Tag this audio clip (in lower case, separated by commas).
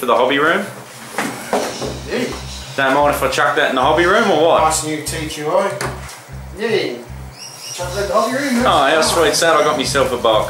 music, speech, inside a small room